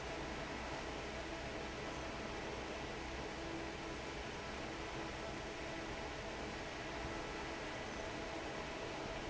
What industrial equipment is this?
fan